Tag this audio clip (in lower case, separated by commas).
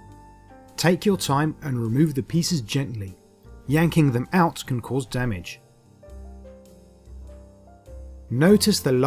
speech, music